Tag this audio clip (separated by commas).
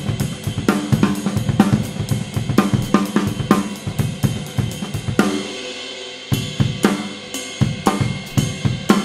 playing cymbal, Cymbal, Hi-hat